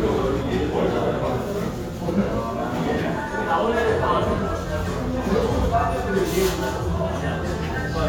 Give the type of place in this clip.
crowded indoor space